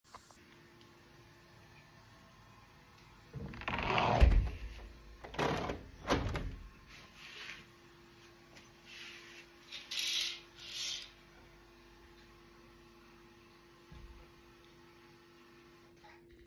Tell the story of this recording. I closed a window while the sink was running in the background.